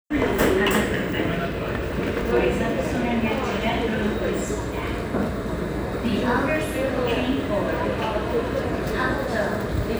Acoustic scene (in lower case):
subway station